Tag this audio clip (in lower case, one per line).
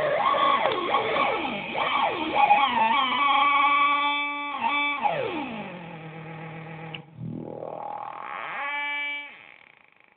effects unit
distortion
music